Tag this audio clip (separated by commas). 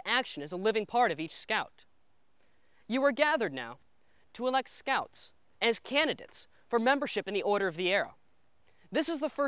Speech